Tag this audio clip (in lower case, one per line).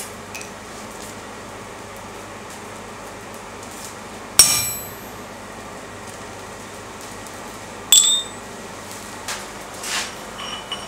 forging swords